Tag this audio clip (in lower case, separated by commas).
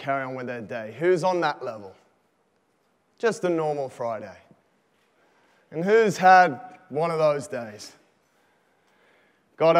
speech